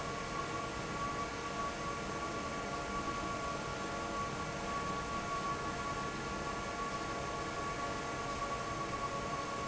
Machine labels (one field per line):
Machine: fan